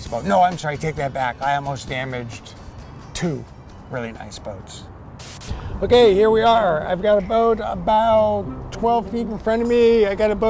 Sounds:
music
speech

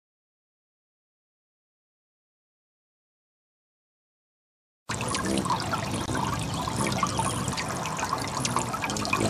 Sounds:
dribble

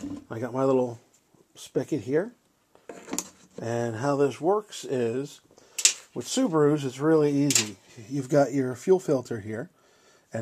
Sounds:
speech

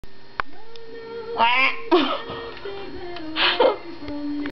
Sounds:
quack

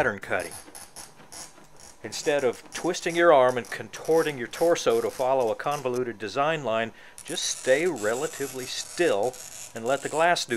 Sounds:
speech

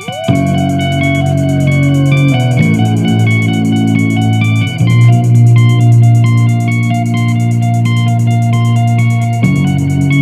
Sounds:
guitar
music
musical instrument
strum
plucked string instrument

